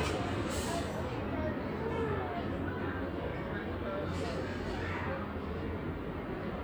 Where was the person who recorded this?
in a residential area